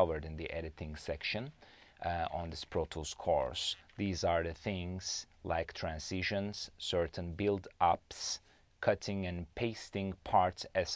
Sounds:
speech

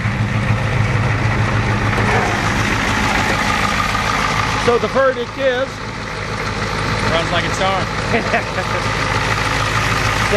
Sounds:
vehicle, motor vehicle (road), engine, speech, truck

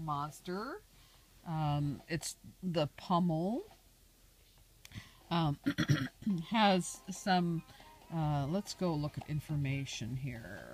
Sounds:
speech

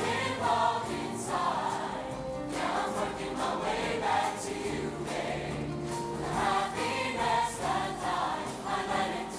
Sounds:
male singing, female singing, music

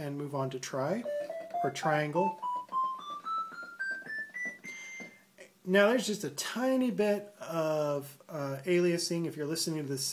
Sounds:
speech, inside a small room, music

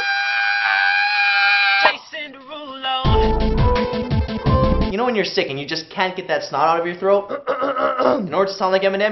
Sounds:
speech, music, singing

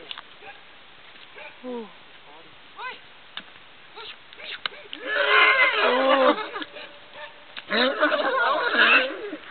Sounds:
bovinae, livestock

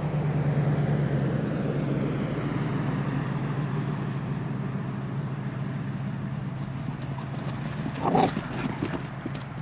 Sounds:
dog, domestic animals, sheep, animal

